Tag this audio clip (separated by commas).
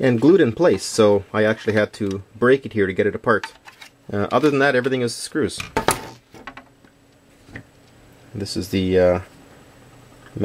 Speech